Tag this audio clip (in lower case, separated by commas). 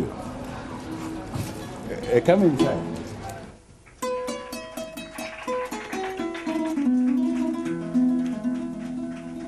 speech, music